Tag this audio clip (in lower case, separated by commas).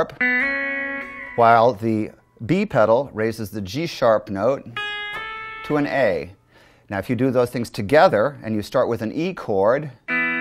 slide guitar, music, speech